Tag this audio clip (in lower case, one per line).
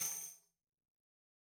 tambourine
percussion
musical instrument
music